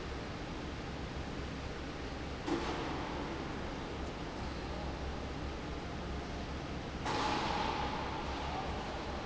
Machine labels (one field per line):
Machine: fan